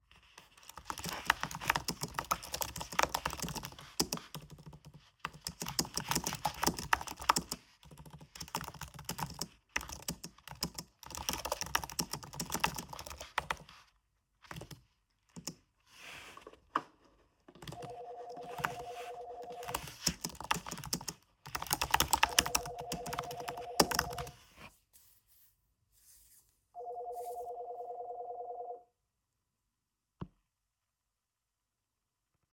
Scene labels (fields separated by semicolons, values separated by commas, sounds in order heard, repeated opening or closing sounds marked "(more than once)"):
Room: office; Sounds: keyboard typing, phone ringing